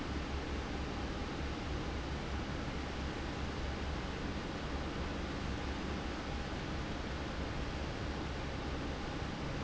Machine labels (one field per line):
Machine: fan